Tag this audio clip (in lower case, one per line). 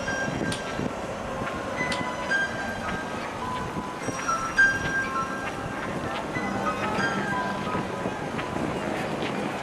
outside, urban or man-made
music